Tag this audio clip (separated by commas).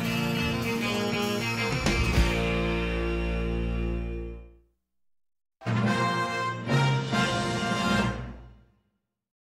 Music, Television